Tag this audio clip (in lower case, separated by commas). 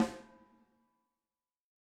drum, snare drum, musical instrument, percussion, music